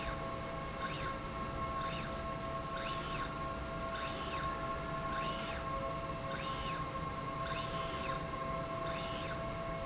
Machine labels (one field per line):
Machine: slide rail